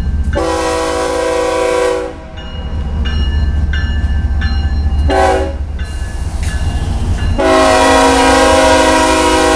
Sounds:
train wagon, Train, Rail transport, Train horn

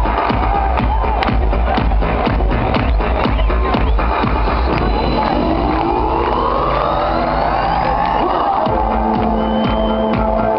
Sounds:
Music

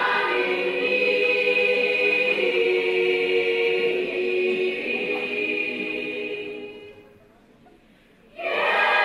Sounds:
Singing, Choir

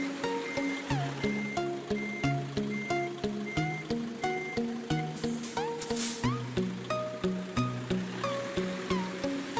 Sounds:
Reversing beeps, Music, Vehicle

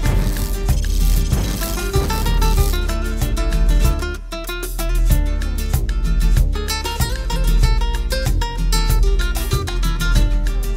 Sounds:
Salsa music

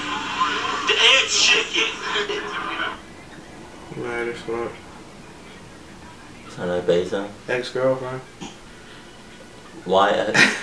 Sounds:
Speech

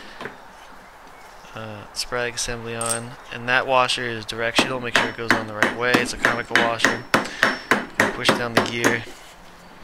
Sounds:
Speech, inside a small room

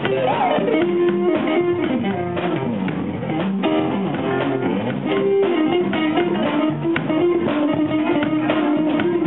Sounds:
Music, Musical instrument, Guitar

